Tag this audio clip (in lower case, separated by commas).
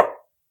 tap